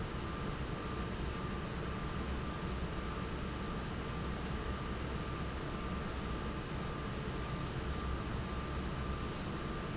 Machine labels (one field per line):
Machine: fan